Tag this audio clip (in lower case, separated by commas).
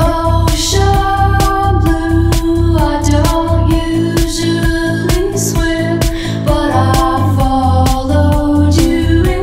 music, independent music